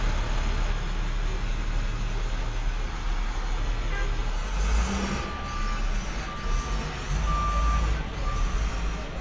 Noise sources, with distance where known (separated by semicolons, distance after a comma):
large-sounding engine, near; car horn; reverse beeper, near